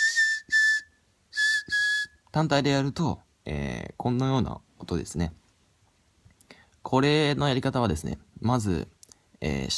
A person is whistling and talking